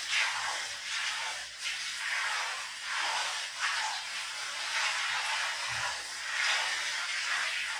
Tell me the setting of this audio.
restroom